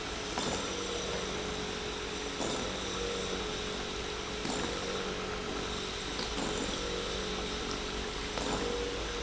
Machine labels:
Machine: pump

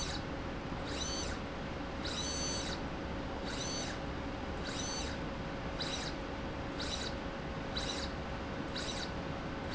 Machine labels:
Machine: slide rail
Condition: abnormal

